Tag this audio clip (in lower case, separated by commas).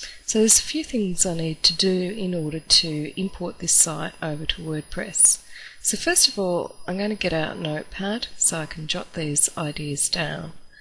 speech